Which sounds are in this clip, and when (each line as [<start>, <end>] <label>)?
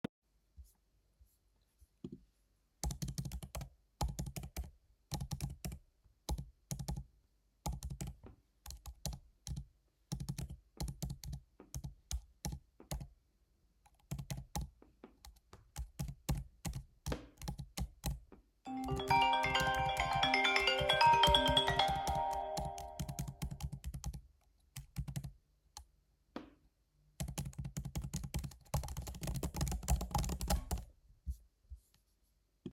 [2.77, 31.60] keyboard typing
[18.76, 24.37] phone ringing